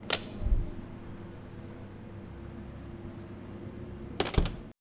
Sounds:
domestic sounds, door, slam

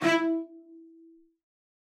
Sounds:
bowed string instrument, musical instrument, music

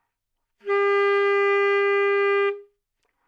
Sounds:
music, wind instrument, musical instrument

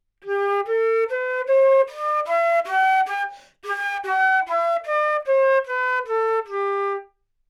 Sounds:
musical instrument, music, wind instrument

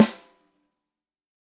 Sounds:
percussion, snare drum, music, drum, musical instrument

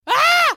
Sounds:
screaming, human voice

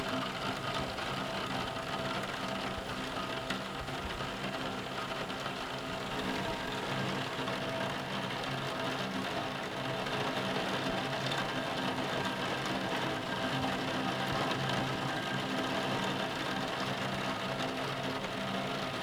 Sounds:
rain, water

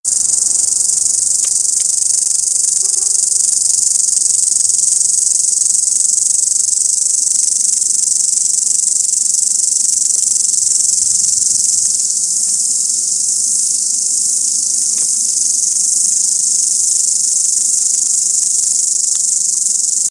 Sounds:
animal, insect, wild animals

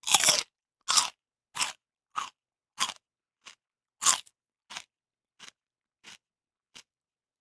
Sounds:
chewing

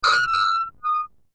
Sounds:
screech

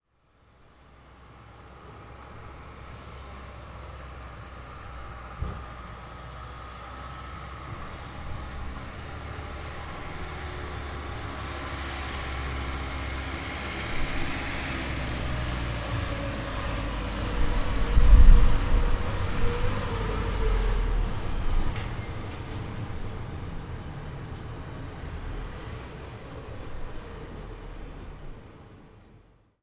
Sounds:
car, motor vehicle (road), car passing by, vehicle

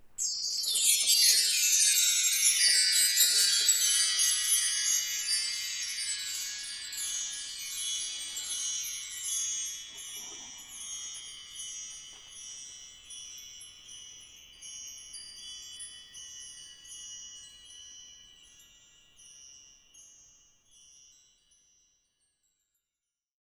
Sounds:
chime, bell

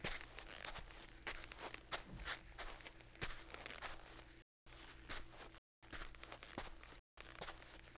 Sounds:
footsteps, squeak

